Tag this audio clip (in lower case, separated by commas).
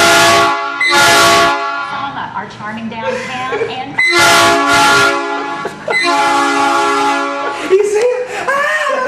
train horn, honking, speech